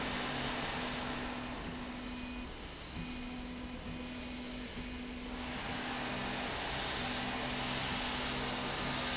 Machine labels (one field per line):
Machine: slide rail